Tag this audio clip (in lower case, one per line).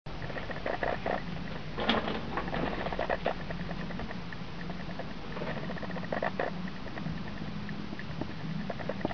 inside a small room